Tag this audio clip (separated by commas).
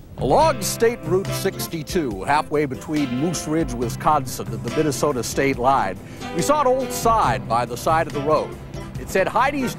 Music, Speech